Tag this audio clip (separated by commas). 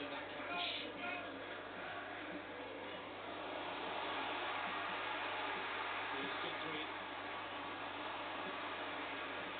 Speech